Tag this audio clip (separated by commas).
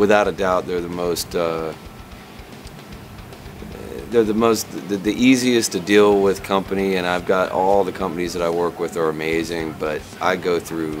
Music, Speech